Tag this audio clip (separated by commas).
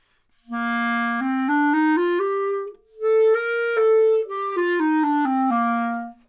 Musical instrument, woodwind instrument, Music